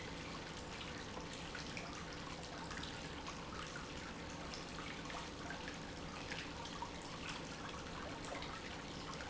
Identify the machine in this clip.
pump